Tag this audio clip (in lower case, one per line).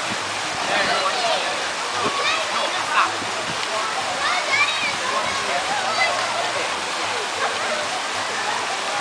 waterfall
stream
speech